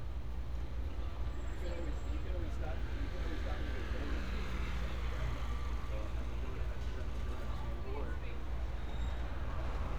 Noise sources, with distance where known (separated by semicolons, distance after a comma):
engine of unclear size; person or small group talking